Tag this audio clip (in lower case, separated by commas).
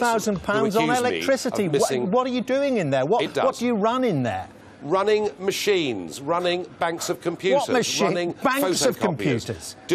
speech